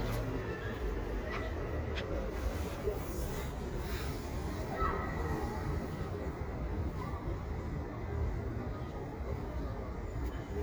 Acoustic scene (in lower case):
residential area